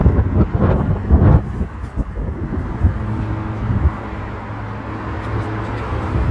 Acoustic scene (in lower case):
street